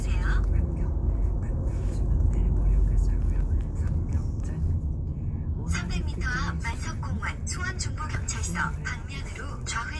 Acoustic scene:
car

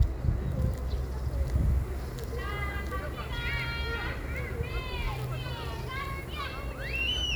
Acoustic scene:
residential area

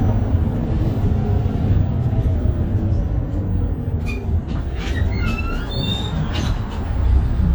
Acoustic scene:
bus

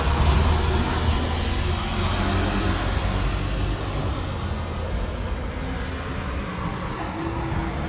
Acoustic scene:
street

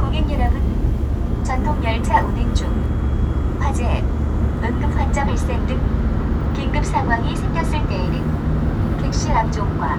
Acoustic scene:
subway train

